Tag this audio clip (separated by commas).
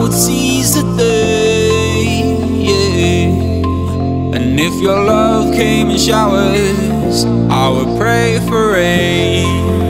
Music